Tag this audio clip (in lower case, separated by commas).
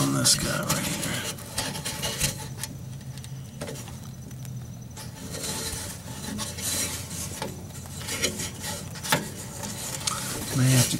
speech